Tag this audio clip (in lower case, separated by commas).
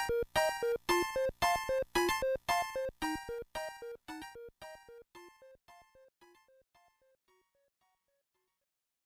music